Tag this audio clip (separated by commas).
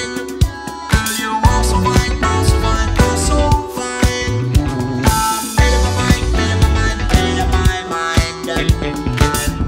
Music